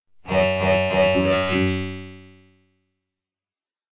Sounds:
human voice
speech synthesizer
speech

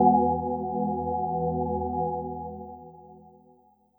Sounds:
organ
music
musical instrument
keyboard (musical)

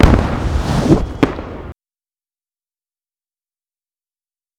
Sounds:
explosion
whoosh
fireworks

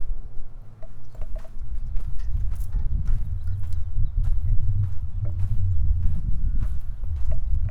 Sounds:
walk

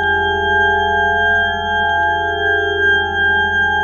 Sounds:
musical instrument
keyboard (musical)
organ
music

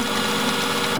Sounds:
printer
mechanisms

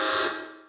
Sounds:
alarm

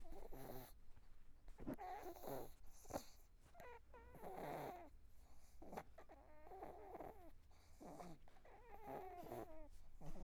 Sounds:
dog
domestic animals
animal

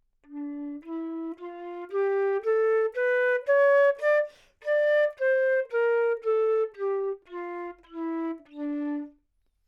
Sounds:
musical instrument
music
woodwind instrument

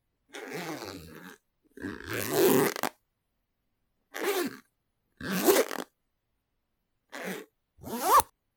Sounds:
domestic sounds
zipper (clothing)

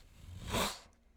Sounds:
hiss

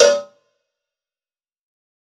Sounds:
cowbell
bell

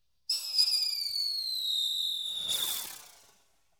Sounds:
fireworks
explosion

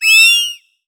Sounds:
animal

